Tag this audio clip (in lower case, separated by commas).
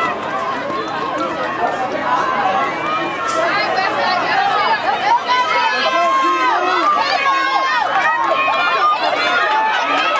run, speech, outside, urban or man-made